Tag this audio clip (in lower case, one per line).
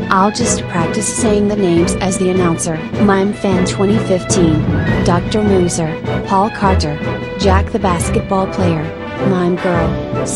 speech
music